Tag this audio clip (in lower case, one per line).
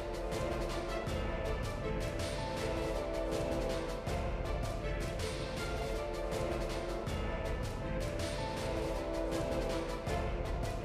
music